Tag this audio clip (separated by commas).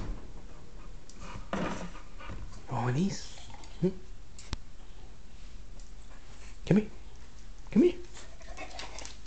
Animal, pets, Speech